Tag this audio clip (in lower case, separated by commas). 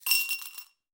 glass, domestic sounds, coin (dropping)